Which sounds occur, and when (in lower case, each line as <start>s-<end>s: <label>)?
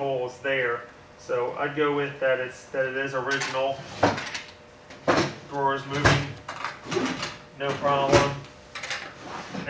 0.0s-9.6s: mechanisms
9.2s-9.6s: drawer open or close